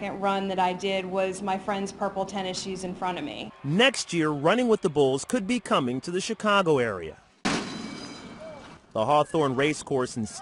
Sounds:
speech

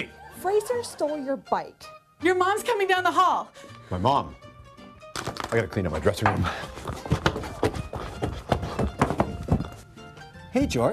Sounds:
speech, inside a small room, music

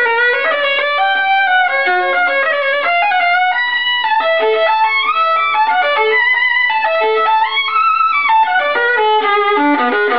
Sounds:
bowed string instrument, fiddle

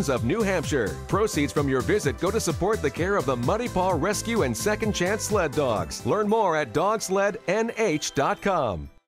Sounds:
music, speech

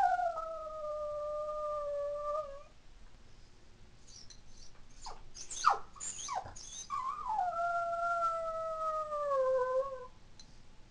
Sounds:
dog howling

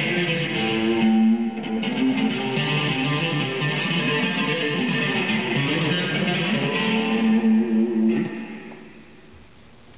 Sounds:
music, heavy metal, plucked string instrument, tapping (guitar technique), guitar, musical instrument

